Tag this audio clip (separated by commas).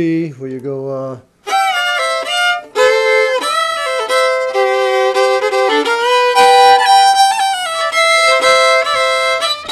Musical instrument, Music, fiddle, Bowed string instrument, Speech